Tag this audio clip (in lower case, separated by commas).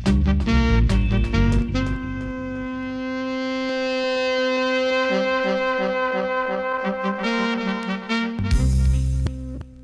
trumpet, music, brass instrument, trombone